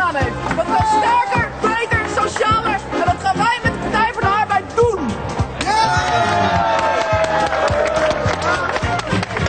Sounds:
female speech, music, monologue

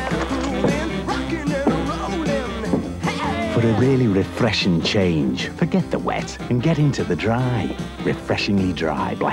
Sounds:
music, speech

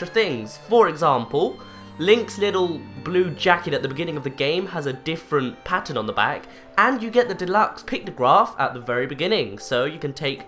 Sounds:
speech, music

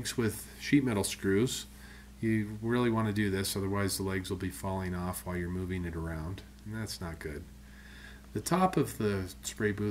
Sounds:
speech

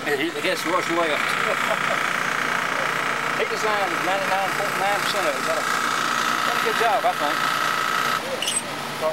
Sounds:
truck, speech, vehicle

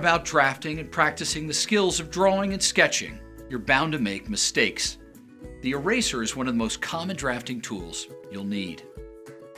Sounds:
music, speech

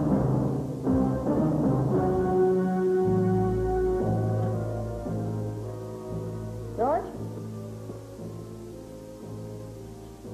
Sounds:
music, speech

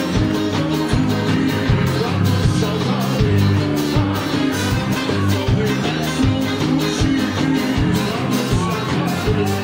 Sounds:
music, singing

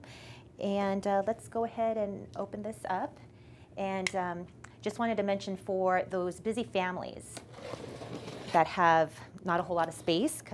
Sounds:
speech

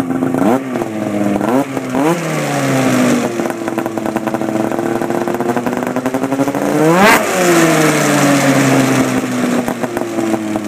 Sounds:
motorcycle, vehicle

